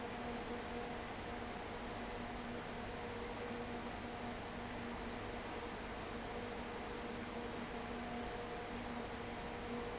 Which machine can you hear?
fan